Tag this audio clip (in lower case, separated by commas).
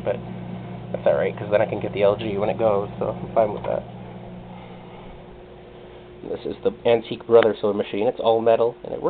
speech